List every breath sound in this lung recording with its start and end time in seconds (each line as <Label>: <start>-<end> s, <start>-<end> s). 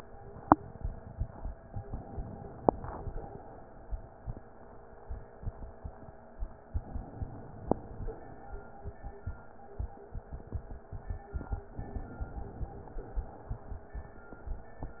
Inhalation: 1.82-3.32 s, 6.74-7.71 s, 11.78-12.71 s
Exhalation: 7.71-8.44 s, 12.71-13.66 s